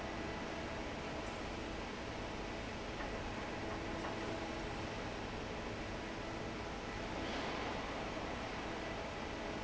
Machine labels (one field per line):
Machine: fan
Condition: normal